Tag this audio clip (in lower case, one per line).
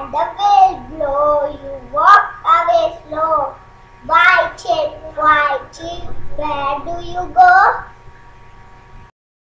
speech